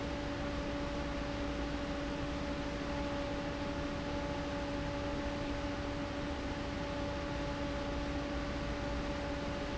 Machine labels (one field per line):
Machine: fan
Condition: abnormal